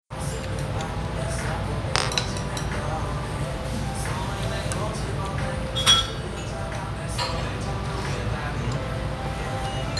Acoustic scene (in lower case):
restaurant